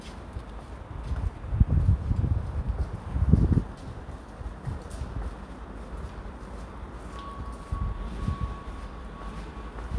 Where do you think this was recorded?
in a residential area